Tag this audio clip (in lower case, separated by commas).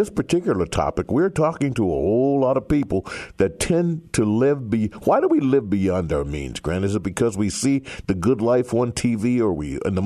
speech